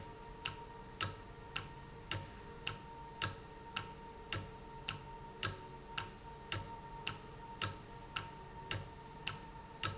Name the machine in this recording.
valve